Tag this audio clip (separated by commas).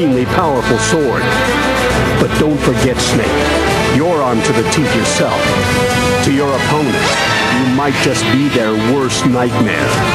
Speech, Music